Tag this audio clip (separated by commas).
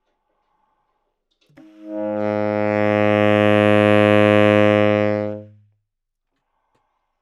Wind instrument, Musical instrument, Music